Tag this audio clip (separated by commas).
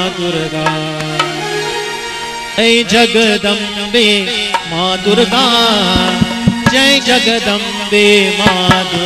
Music, Mantra